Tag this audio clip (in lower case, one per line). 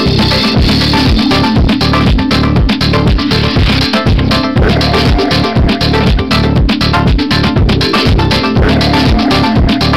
music